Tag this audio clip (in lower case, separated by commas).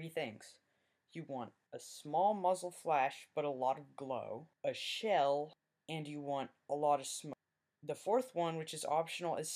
speech